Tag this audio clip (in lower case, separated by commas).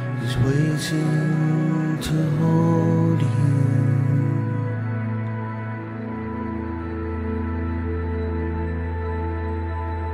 new-age music